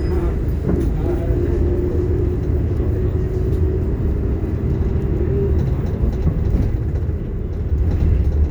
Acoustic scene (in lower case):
bus